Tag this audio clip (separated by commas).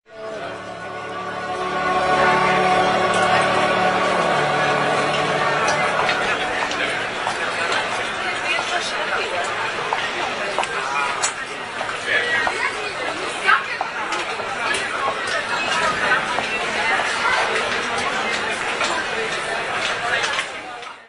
Human group actions, Crowd